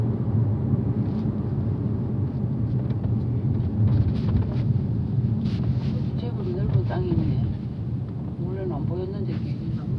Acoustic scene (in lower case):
car